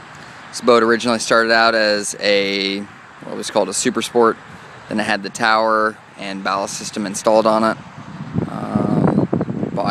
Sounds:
Speech

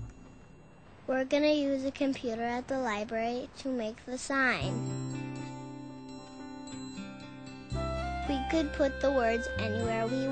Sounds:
Speech, Music

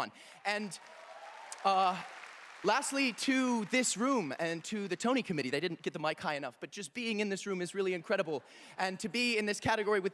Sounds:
Narration, Male speech, Speech

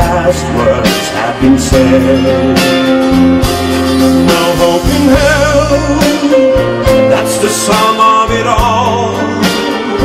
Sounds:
Music, Singing

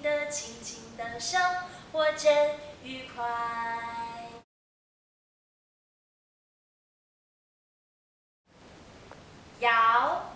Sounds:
Speech

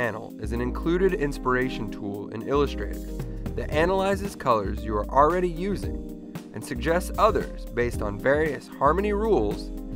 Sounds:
Speech, Music

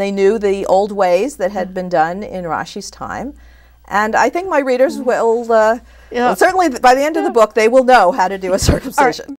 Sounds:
Female speech, Speech

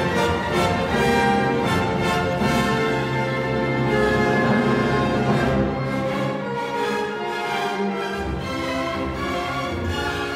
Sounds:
Music

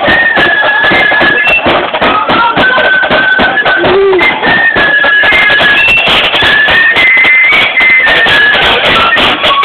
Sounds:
Music, Speech

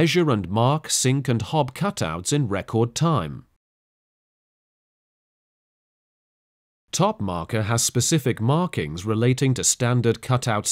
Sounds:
Speech

